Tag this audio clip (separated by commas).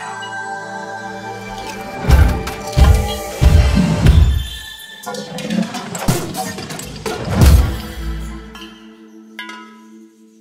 Music, Sound effect